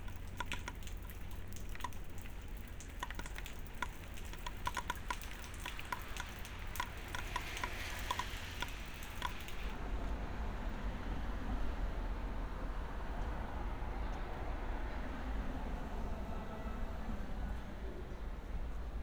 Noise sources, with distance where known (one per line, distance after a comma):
background noise